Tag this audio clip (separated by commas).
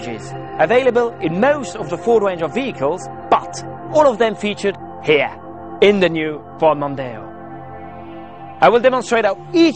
Music, Speech